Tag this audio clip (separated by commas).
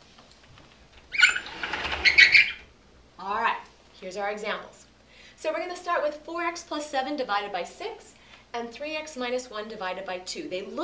Speech